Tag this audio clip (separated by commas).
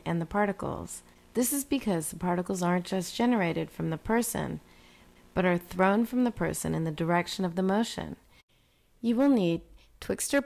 Speech